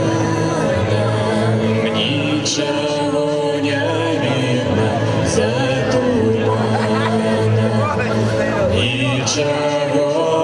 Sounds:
Speech, Music

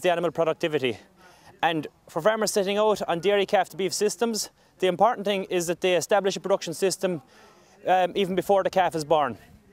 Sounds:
Speech

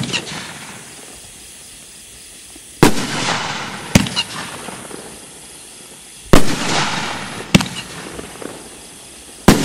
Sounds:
Firecracker, Fireworks

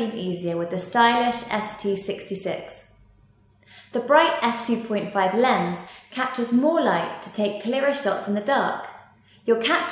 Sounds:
Speech

